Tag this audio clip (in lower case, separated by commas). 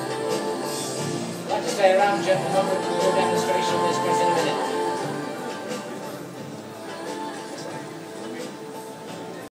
music, speech